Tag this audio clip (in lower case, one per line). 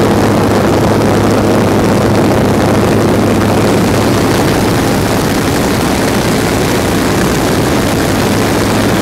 vehicle